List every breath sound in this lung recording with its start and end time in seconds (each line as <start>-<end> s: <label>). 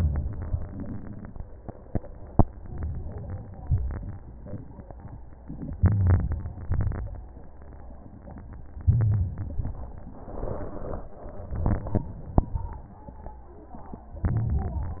0.00-0.65 s: inhalation
0.00-0.66 s: crackles
0.71-1.36 s: exhalation
2.40-3.60 s: inhalation
3.63-4.48 s: exhalation
5.76-6.66 s: inhalation
6.69-7.47 s: crackles
6.71-7.45 s: exhalation
8.82-9.68 s: crackles
8.86-9.71 s: inhalation
9.77-10.78 s: exhalation
11.50-12.51 s: inhalation
12.54-13.55 s: exhalation
14.29-15.00 s: inhalation